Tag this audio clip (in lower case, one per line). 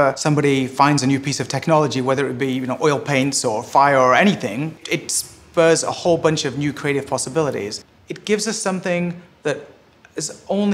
speech